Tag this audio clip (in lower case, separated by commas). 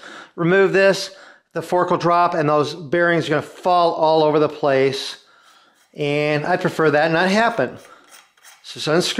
inside a large room or hall, speech